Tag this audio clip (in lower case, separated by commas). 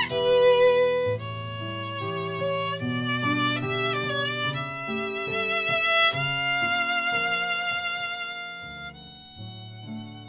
music, musical instrument, violin